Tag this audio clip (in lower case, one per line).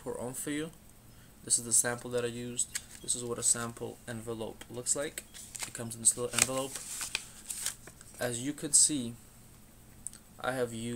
speech